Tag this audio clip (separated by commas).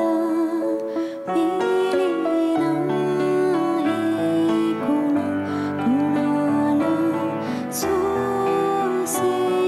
Music, New-age music, Sad music